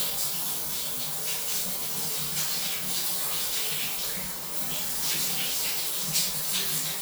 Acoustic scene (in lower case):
restroom